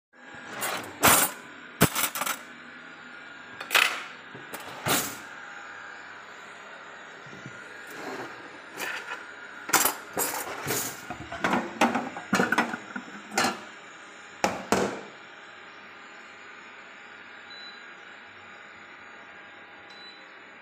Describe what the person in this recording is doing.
I was preparing the cooking utensils, taking them from drawers, while my robotic vacuum was cleaning the room.